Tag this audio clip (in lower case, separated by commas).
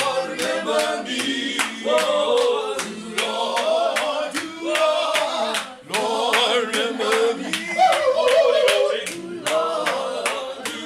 choir, male singing, female singing